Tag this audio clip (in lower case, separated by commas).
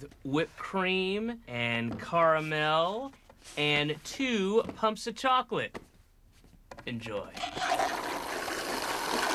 speech